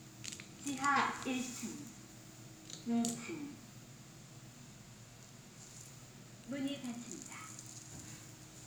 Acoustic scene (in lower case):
elevator